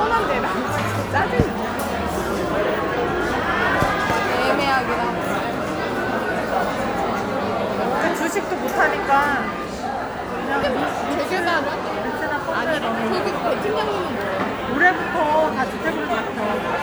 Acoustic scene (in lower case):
crowded indoor space